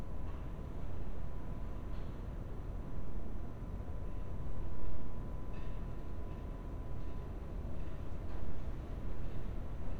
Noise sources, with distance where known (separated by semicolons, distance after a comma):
background noise